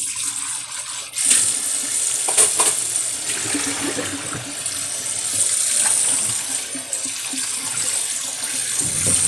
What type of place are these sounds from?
kitchen